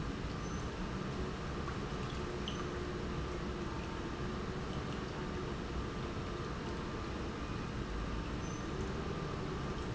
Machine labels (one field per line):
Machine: pump